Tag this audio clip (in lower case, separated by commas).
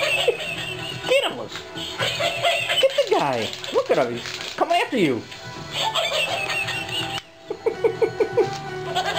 dog, animal, music, chuckle, speech